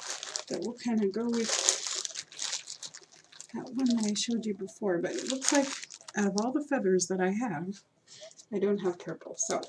Plastic crinkling and crumpling are occurring, and an adult female speaks